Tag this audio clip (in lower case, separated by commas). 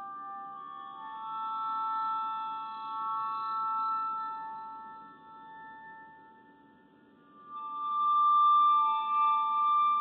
glockenspiel, music, musical instrument